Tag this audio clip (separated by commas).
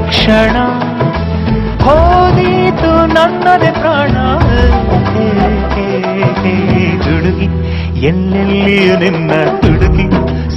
Music, Singing